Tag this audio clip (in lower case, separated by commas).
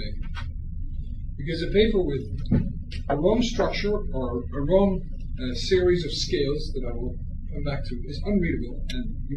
speech